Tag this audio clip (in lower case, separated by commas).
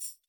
music, tambourine, percussion, musical instrument